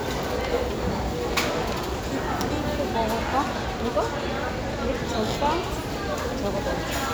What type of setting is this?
crowded indoor space